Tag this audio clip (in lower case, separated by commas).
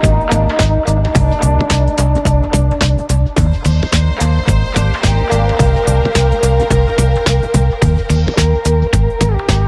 music